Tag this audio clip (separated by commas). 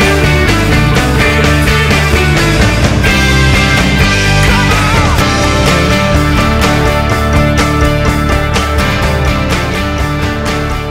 Music